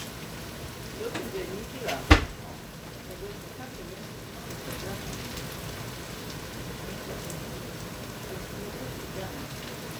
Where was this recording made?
in a kitchen